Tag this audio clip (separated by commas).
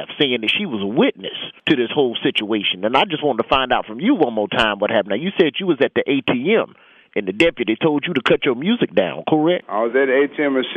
Speech